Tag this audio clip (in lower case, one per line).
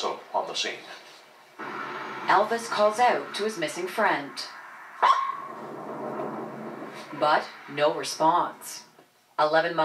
yip
speech